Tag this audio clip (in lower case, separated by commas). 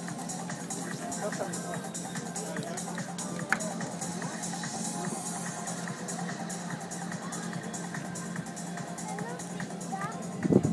speech, music, spray